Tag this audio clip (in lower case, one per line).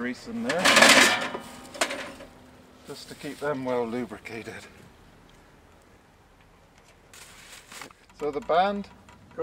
speech